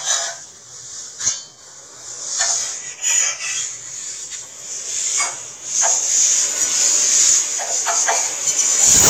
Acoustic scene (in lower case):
kitchen